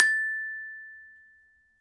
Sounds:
Music, Glockenspiel, Musical instrument, Percussion, Mallet percussion

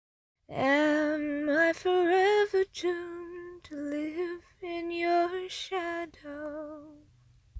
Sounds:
Female singing, Singing, Human voice

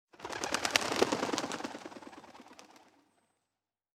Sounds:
Bird, Wild animals, Animal

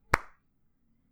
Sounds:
Hands, Clapping

